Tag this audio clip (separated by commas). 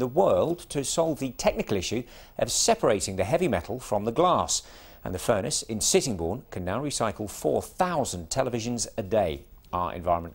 Speech